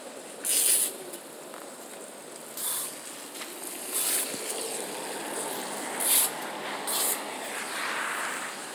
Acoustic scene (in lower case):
residential area